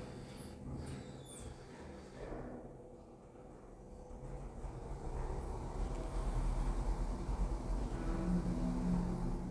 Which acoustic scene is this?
elevator